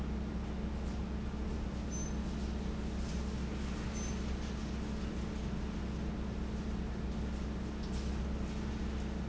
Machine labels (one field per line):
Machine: fan